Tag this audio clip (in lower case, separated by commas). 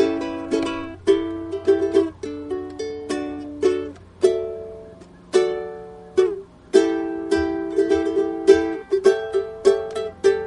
playing ukulele